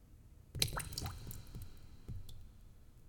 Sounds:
water
liquid
drip

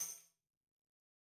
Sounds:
music
percussion
musical instrument
tambourine

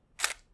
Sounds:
camera
mechanisms

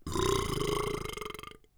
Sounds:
burping

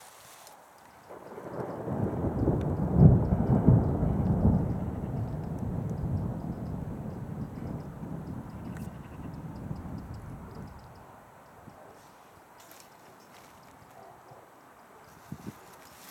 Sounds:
thunder
thunderstorm

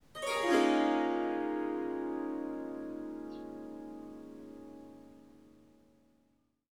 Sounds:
music
musical instrument
harp

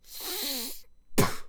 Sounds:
respiratory sounds
breathing

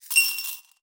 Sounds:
home sounds
glass
coin (dropping)

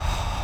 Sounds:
breathing
respiratory sounds

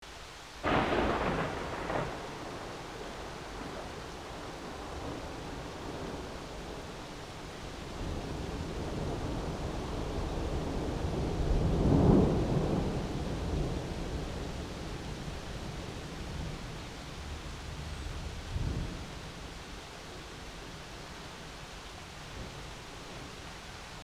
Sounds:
thunder
water
rain
thunderstorm

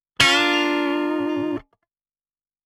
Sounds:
musical instrument
plucked string instrument
music
guitar
electric guitar

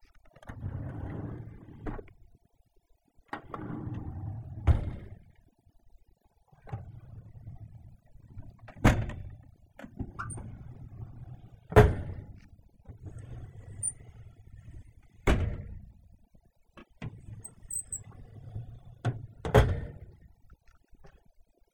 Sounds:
domestic sounds
drawer open or close

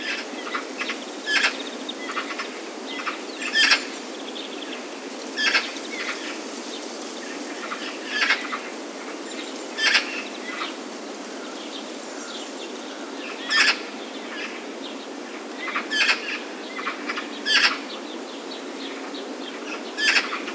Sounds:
animal
bird
wild animals

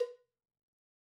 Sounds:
cowbell
bell

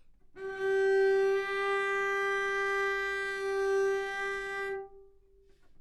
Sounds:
music
bowed string instrument
musical instrument

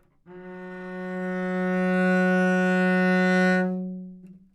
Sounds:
bowed string instrument
musical instrument
music

